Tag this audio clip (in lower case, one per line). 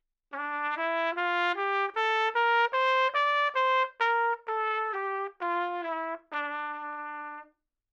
brass instrument
music
trumpet
musical instrument